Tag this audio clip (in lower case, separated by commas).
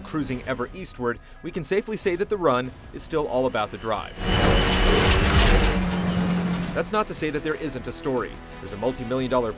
music, speech